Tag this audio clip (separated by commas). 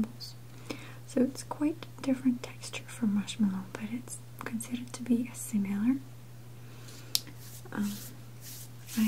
people whispering